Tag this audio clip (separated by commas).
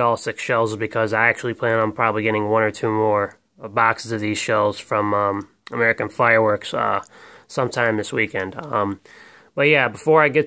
inside a small room, Speech